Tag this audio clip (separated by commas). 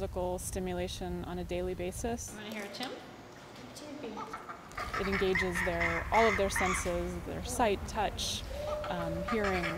outside, rural or natural, Animal, Speech